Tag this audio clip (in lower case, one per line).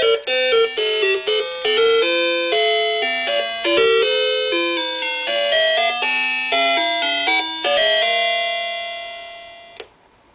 music
tick